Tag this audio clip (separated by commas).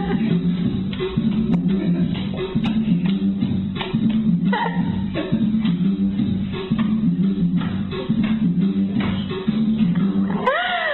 Music, Techno, Electronic music